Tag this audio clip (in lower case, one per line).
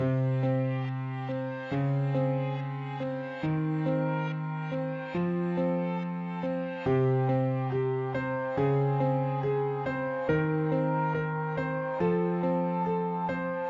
keyboard (musical)
music
piano
musical instrument